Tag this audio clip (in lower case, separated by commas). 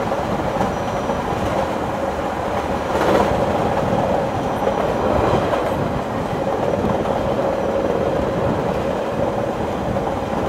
train, vehicle, rail transport, outside, rural or natural